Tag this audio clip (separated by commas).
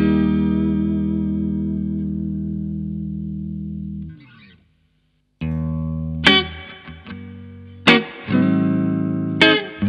Music, Steel guitar, Musical instrument